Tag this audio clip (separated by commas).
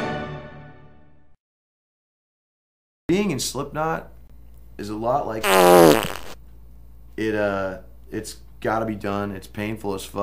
Music, Speech, inside a small room